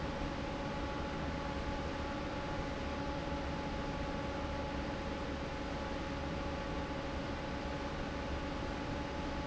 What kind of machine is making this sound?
fan